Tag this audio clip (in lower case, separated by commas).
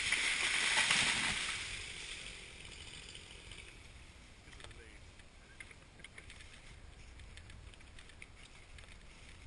chainsawing trees